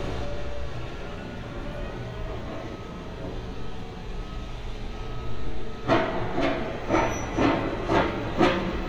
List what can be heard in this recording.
unidentified impact machinery, reverse beeper